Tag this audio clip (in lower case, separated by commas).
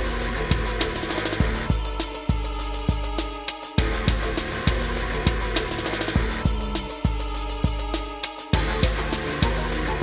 music, rhythm and blues